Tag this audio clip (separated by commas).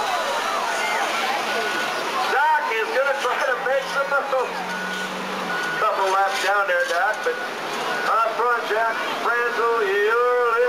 Vehicle, Speech